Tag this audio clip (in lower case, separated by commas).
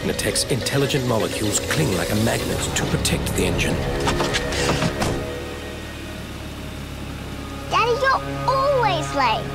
speech, music